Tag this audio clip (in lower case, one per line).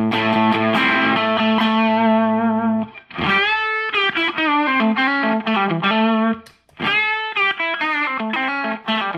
distortion
music
musical instrument
steel guitar